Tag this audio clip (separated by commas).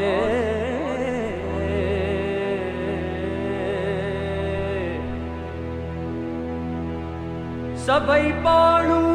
Music